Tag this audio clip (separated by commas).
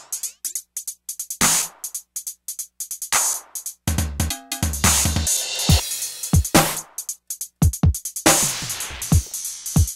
Dubstep, Electronic music, Music